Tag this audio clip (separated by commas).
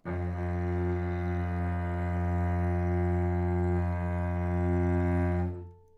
Bowed string instrument, Music, Musical instrument